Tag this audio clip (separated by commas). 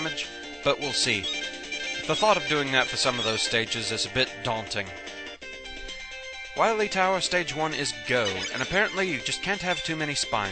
Speech, Music